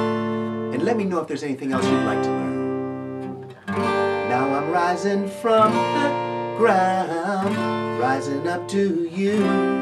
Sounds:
Guitar, Acoustic guitar, Music, Strum, Musical instrument, Plucked string instrument

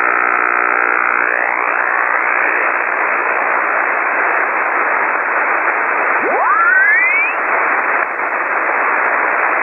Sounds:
Radio, Noise

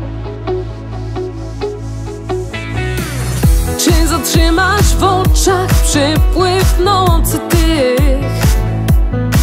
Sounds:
Music

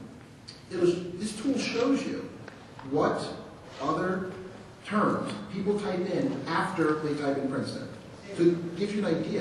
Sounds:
Speech

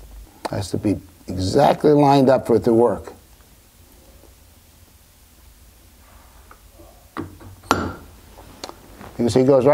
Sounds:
Speech

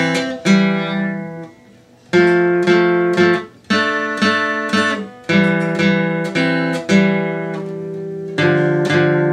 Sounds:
Plucked string instrument, Musical instrument, Guitar, Music

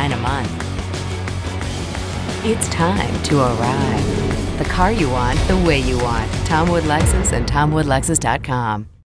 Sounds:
Music, Speech

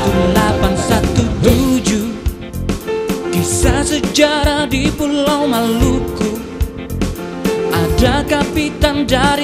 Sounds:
Music

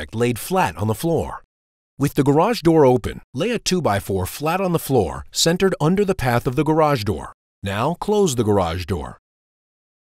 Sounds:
Speech

